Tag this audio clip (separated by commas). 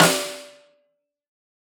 Percussion, Music, Musical instrument, Drum, Snare drum